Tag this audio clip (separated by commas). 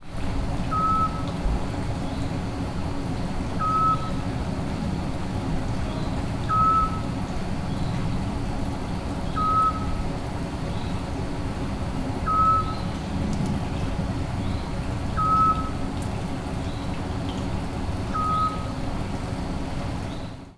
Wild animals, Bird, Animal